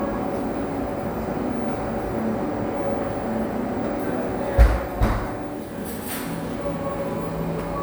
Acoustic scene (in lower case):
cafe